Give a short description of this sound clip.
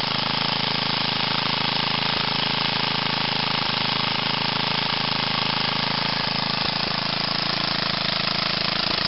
An engine is idling